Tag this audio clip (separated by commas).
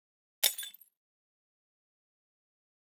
Glass, Shatter